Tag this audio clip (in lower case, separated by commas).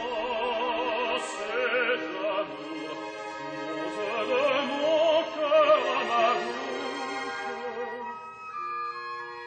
opera, music